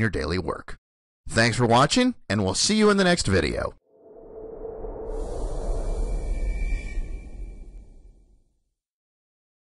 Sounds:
inside a small room, Speech

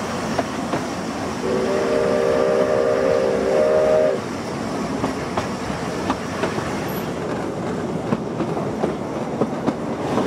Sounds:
Railroad car, Vehicle, Rail transport, Train

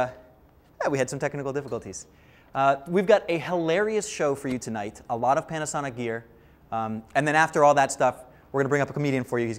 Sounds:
Speech

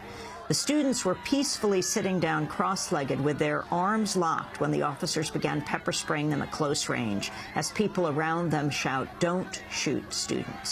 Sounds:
Speech

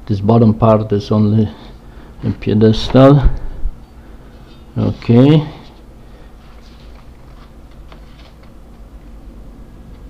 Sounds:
Speech

